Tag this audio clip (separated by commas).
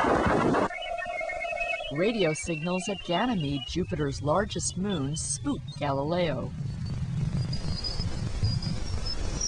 Speech